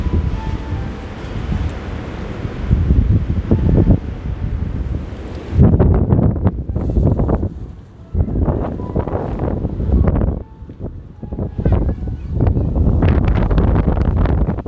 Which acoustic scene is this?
park